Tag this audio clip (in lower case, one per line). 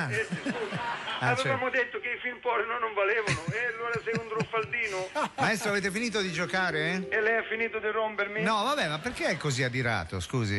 speech